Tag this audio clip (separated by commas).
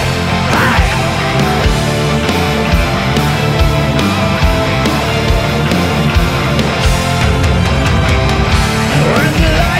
Music